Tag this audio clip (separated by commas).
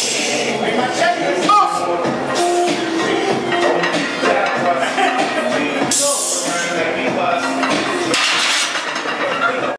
Speech, Music